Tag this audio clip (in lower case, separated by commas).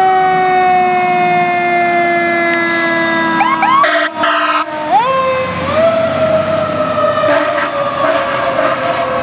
fire truck (siren), emergency vehicle, siren